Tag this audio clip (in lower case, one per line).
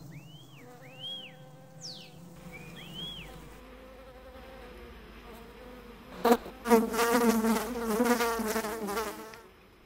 wasp